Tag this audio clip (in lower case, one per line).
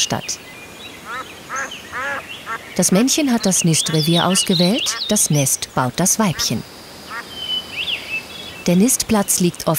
duck quacking